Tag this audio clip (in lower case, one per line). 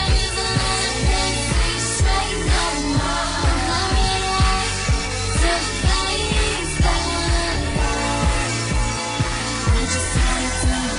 pop music
music
exciting music